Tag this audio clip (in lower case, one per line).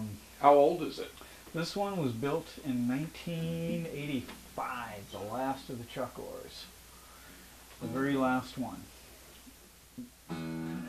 speech